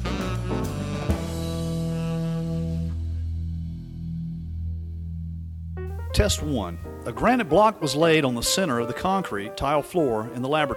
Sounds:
Speech, Music

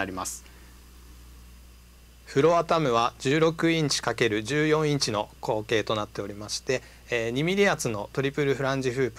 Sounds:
Speech

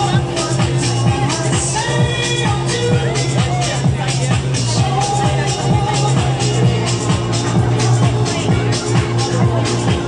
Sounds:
Vehicle, Speech, Music

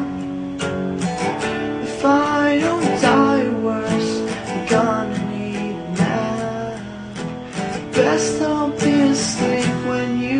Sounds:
Music

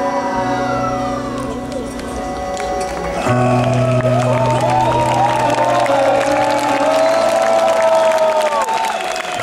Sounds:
Orchestra, Music

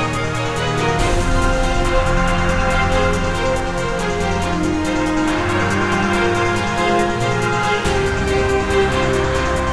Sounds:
Soundtrack music, Music, Theme music

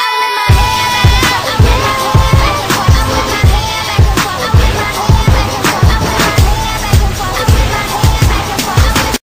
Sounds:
Music

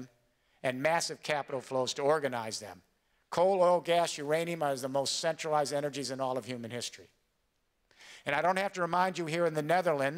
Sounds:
Male speech, Speech

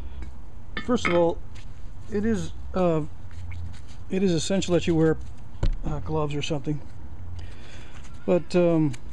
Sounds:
Speech, Chink

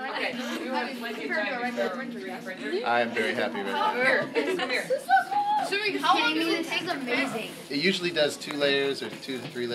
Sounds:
Speech, Printer

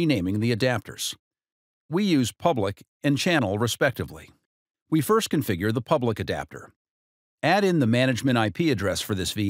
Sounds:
Speech

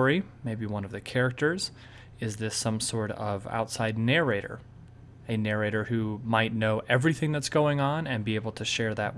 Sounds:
Speech, monologue

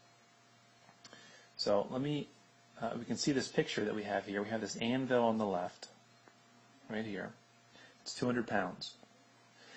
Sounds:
Speech

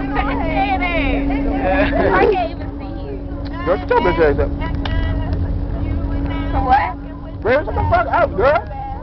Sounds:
Bus, Vehicle, Speech

